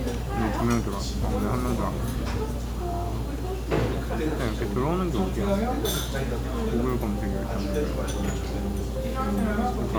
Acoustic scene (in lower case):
crowded indoor space